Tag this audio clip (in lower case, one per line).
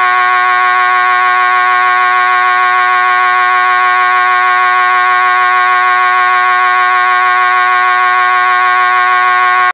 siren